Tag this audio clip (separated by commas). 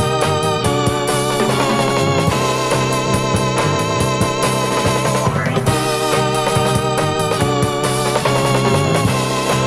Music